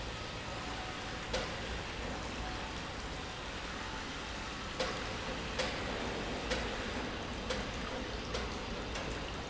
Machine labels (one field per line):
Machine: pump